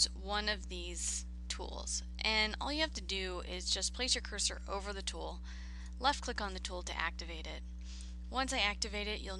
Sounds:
speech

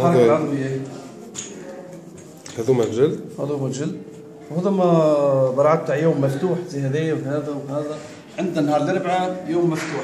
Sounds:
speech

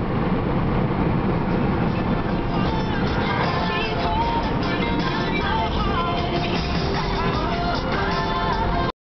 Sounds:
music
car
vehicle
car passing by

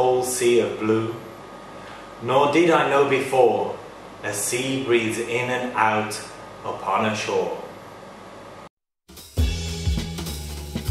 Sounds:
monologue
music
man speaking
speech

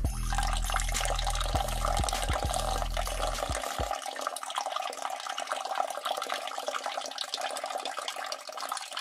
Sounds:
speech
music

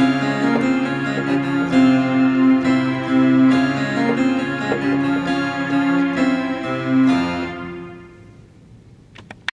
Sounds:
piano
keyboard (musical)
electric piano

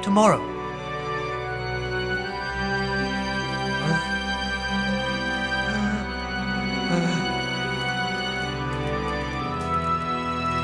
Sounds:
speech
theme music
music

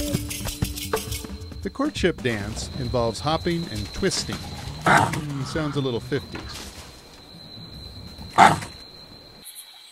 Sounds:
outside, rural or natural
music
speech
animal

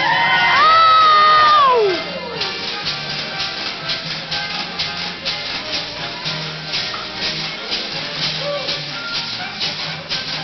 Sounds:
violin
musical instrument
music

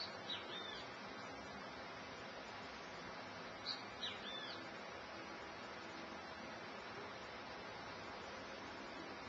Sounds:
animal

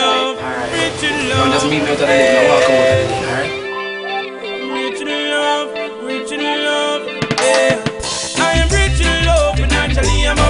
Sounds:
speech
music

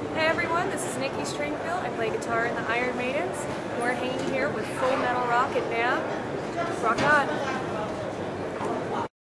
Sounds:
speech

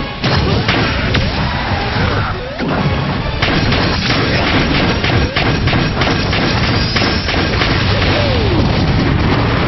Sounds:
music
crash

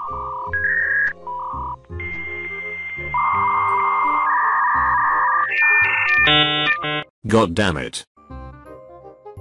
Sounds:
speech
bleep
music

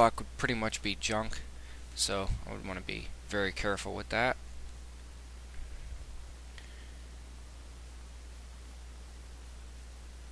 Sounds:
speech

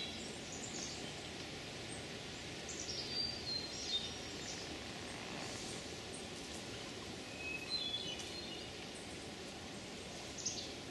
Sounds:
wood thrush calling

